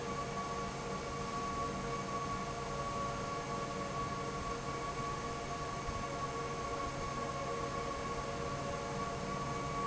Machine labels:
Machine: fan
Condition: normal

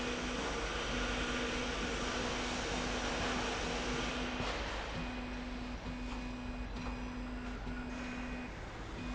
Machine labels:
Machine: slide rail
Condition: normal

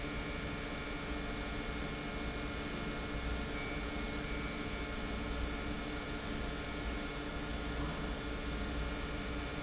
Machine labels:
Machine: pump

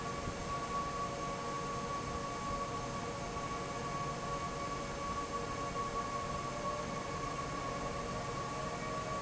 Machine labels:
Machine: fan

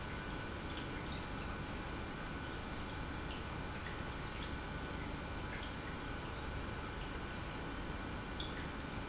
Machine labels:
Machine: pump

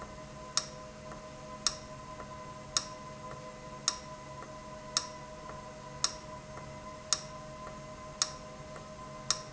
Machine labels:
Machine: valve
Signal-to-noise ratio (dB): 0 dB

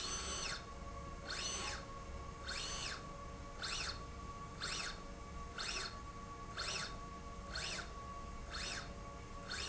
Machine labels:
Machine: slide rail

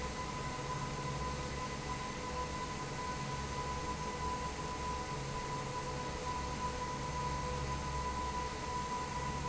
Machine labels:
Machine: fan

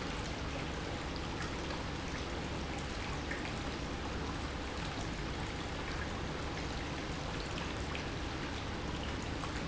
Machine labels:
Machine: pump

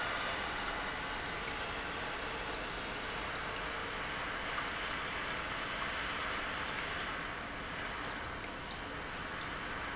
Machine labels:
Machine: pump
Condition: normal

